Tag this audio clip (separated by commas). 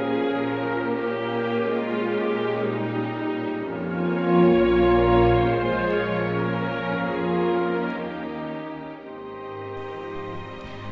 Music